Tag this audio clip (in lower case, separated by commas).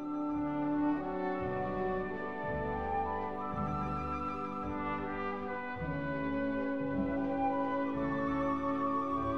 brass instrument, trumpet